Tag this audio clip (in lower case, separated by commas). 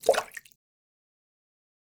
liquid, splash